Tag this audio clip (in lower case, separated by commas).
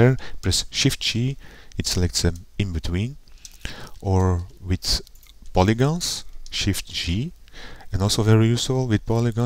speech